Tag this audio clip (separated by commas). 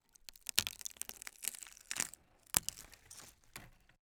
Crackle, Crack, Wood